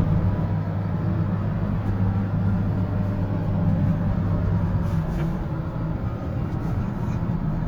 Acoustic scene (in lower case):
car